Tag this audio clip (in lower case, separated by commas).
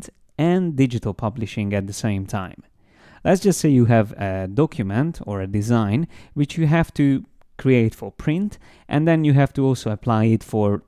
speech